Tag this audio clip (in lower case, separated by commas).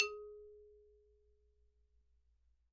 mallet percussion, marimba, music, percussion, musical instrument